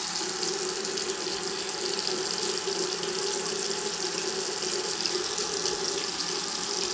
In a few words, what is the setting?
restroom